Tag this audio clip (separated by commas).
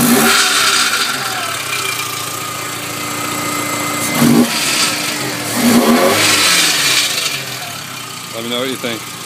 Car, Engine, Speech, Heavy engine (low frequency), revving, Vehicle